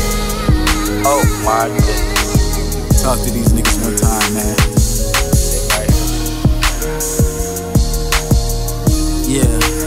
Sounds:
speech, music

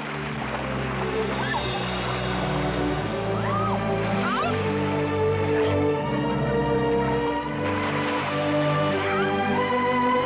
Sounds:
music

